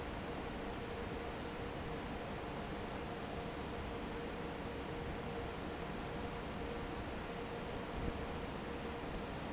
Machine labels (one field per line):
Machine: fan